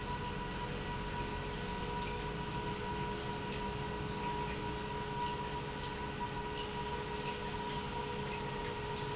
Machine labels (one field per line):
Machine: pump